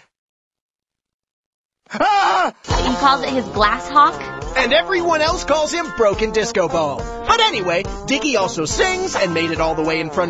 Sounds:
music, speech

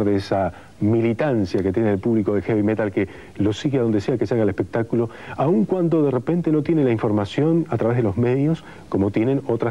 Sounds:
speech

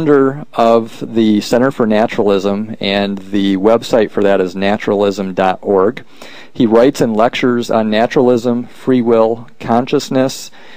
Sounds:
man speaking, speech, narration

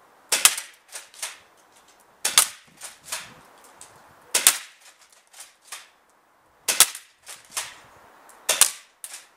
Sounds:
cap gun, gunfire

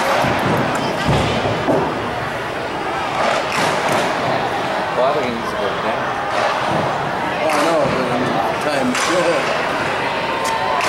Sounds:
inside a large room or hall, speech

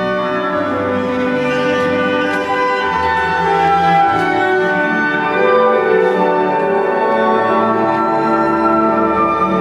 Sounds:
cello, music, bowed string instrument, fiddle, classical music, orchestra, musical instrument

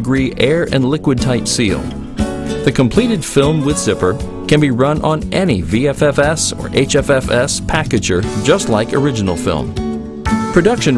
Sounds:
music, speech

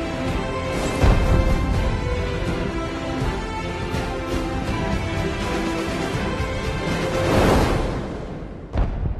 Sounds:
music

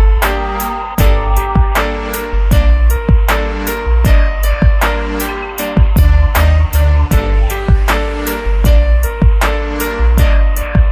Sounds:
music, echo

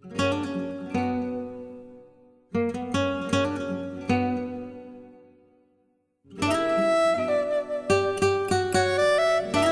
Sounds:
plucked string instrument, musical instrument, guitar, music

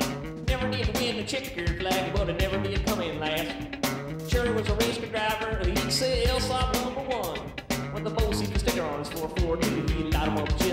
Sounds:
music

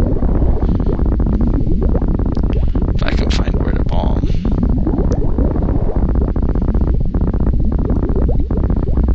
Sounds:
speech

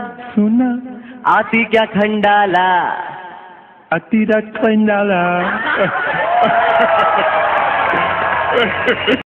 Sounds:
male singing

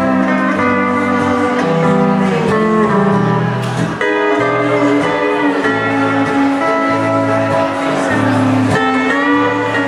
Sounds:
guitar, song, wedding music, steel guitar, music, musical instrument

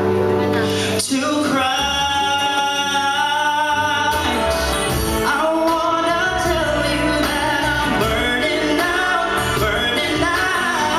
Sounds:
music, male singing

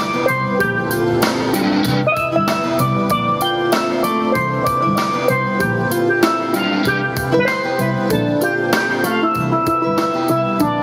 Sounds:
playing steelpan

